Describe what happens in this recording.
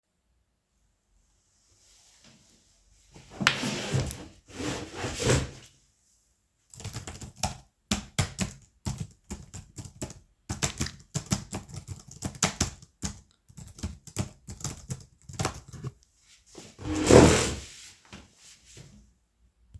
I walked to my chair and moved it back to sit down at my desk. Then I started typing on the keyboard. After I was done, I stood up from the desk by moving the chair backwards.